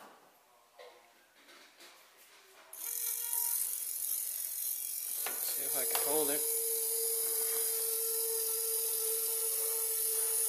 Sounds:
inside a small room
speech

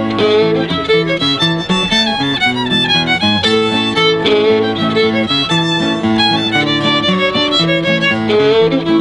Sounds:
music
violin
musical instrument

